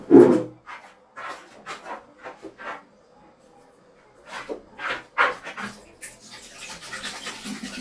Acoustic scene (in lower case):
restroom